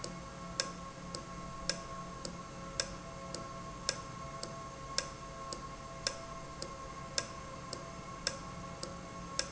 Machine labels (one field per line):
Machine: valve